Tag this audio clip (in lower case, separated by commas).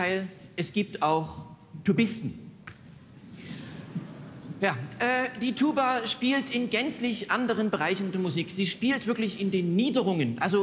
speech